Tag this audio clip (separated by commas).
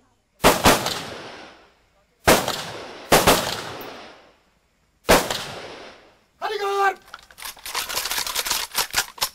machine gun shooting